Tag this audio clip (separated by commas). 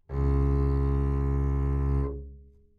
Music, Musical instrument, Bowed string instrument